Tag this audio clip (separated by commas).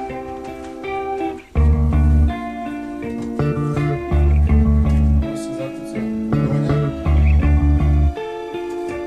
Music, Speech, Blues, Wood